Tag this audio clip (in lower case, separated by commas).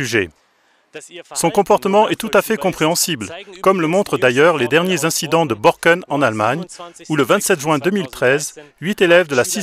speech